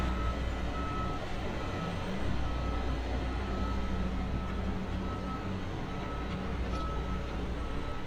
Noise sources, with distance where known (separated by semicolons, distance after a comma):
large-sounding engine